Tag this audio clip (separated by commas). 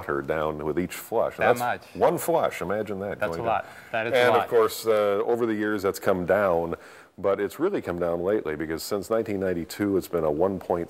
Speech